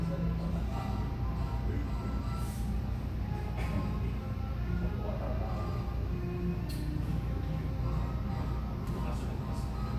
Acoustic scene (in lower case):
cafe